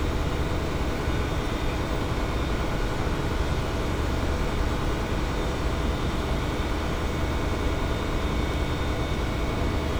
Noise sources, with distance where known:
engine of unclear size, near

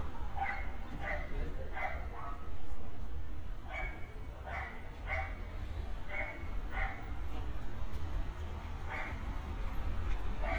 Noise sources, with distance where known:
dog barking or whining, near

